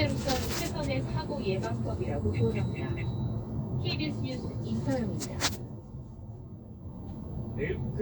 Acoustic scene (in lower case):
car